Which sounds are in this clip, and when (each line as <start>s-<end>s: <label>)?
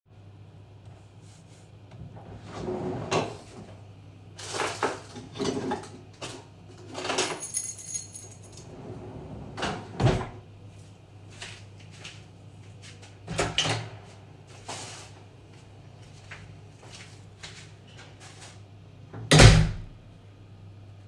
1.8s-3.8s: wardrobe or drawer
7.0s-8.6s: keys
8.6s-10.5s: wardrobe or drawer
11.3s-12.3s: footsteps
13.2s-14.1s: door
16.1s-18.8s: footsteps
19.1s-20.0s: door